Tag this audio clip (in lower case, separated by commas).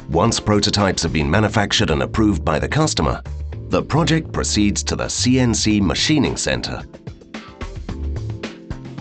speech, music